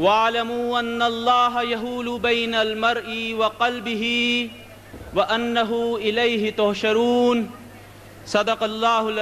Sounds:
male speech, monologue, speech

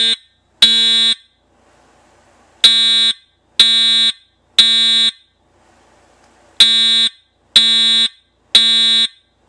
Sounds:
alarm, fire alarm

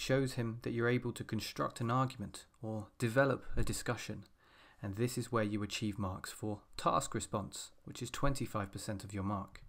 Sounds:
speech

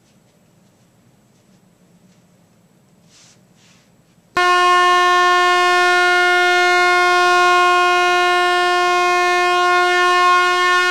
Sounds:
air horn

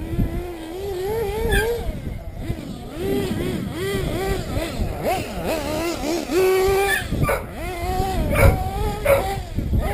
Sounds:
vehicle, idling, accelerating, heavy engine (low frequency), engine

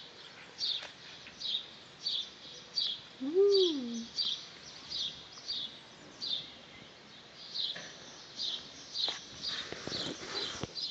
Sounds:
animal

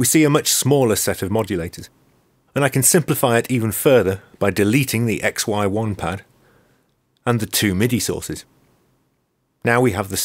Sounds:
speech

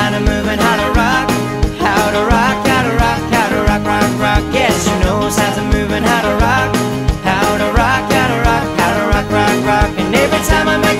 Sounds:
music

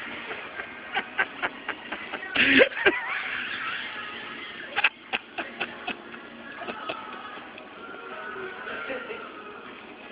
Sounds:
speech, music, inside a public space

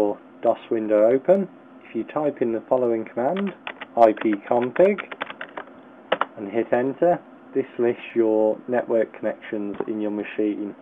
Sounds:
speech

